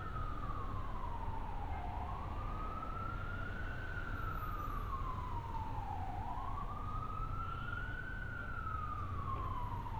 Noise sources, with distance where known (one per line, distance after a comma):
siren, far